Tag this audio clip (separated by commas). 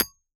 Tools, Hammer